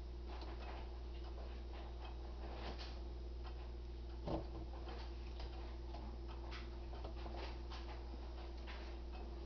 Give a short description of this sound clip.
A small click, faint mechanical humming